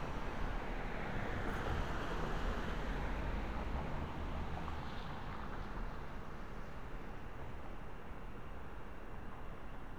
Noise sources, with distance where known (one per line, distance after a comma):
medium-sounding engine, near